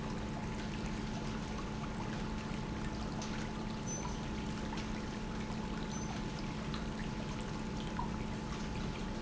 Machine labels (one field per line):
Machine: pump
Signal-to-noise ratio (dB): -6 dB